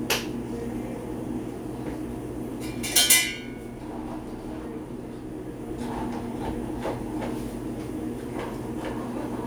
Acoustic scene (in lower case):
cafe